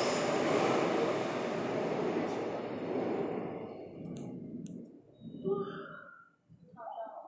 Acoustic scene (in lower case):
subway station